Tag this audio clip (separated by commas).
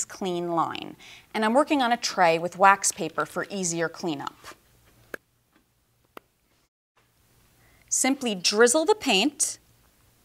Speech